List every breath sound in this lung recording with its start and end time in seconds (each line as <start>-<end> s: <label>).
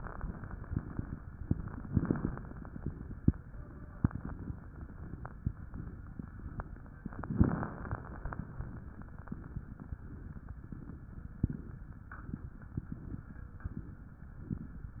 1.59-2.79 s: inhalation
1.59-2.79 s: crackles
7.17-8.37 s: inhalation
7.17-8.37 s: crackles